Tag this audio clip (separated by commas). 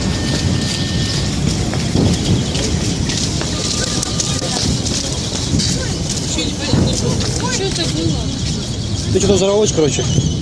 Speech